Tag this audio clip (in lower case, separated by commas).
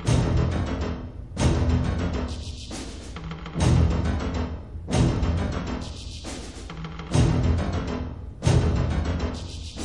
music